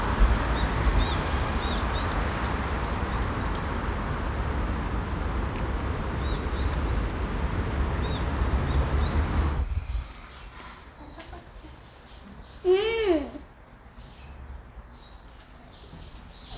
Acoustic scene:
park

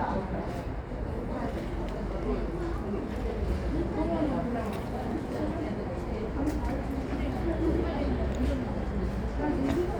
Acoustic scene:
subway station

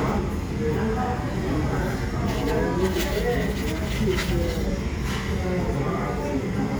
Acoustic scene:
crowded indoor space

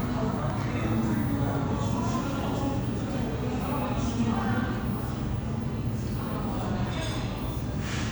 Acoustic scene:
crowded indoor space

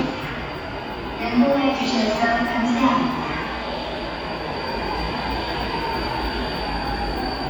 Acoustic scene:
subway station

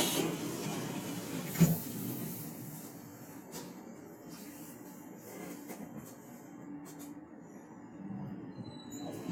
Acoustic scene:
subway train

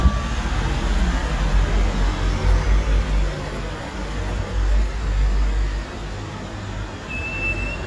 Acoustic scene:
street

